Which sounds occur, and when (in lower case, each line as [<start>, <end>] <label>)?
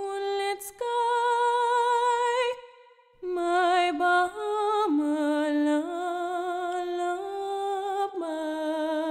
[0.00, 2.52] female singing
[2.52, 3.21] echo
[3.18, 9.10] female singing
[6.66, 6.75] tick